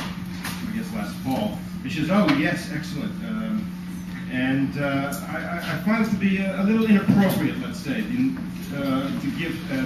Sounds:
speech

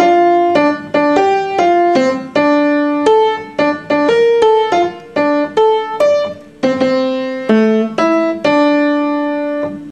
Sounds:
music

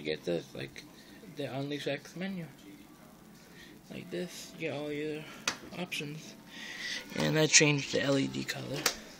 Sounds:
speech, inside a small room

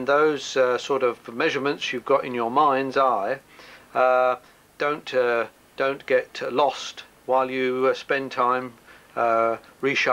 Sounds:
speech

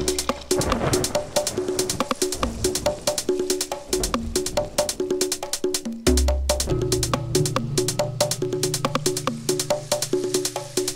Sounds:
music

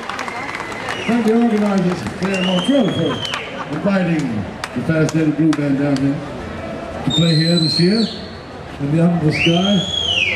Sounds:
speech

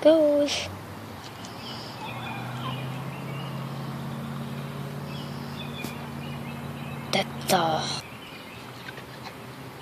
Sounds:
pheasant crowing

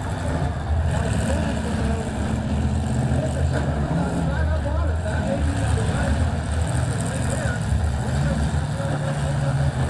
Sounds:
vehicle, speech, truck

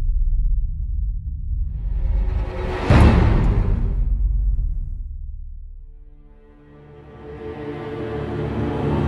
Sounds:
music, soundtrack music

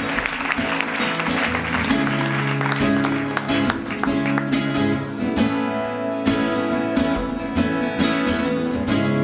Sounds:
music

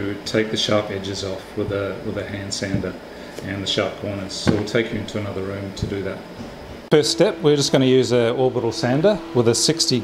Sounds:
speech

